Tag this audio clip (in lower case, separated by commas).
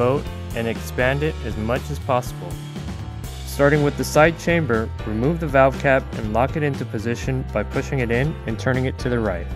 music, speech